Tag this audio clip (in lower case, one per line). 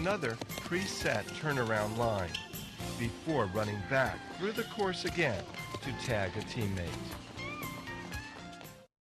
run
speech
music